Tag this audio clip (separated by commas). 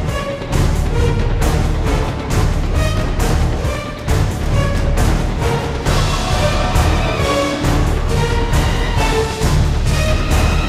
Music